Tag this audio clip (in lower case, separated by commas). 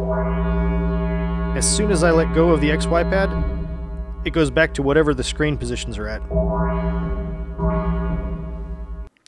musical instrument, music, synthesizer